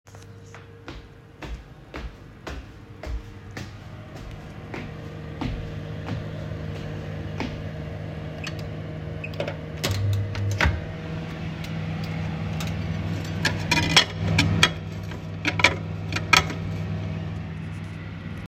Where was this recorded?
kitchen